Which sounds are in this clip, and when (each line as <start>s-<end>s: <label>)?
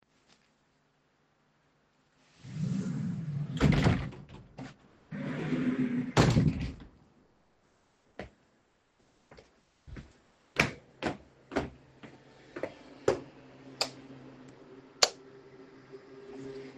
2.3s-4.8s: wardrobe or drawer
4.9s-6.9s: wardrobe or drawer
8.2s-8.3s: footsteps
9.3s-13.3s: footsteps
13.8s-14.0s: light switch
15.0s-15.2s: light switch